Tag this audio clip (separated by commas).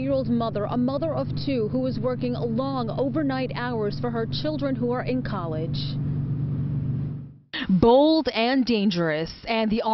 Speech